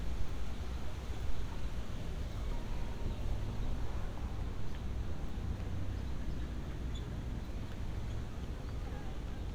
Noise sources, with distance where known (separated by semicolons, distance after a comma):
engine of unclear size, far